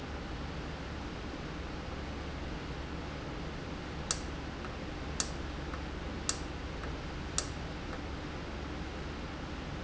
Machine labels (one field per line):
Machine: valve